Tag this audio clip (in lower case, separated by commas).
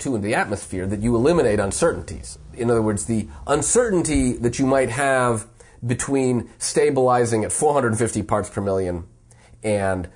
speech, inside a small room